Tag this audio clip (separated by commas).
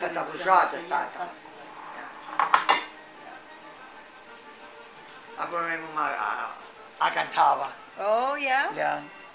dishes, pots and pans